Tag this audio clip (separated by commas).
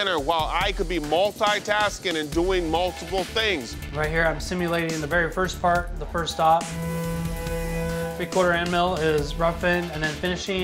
Music, Speech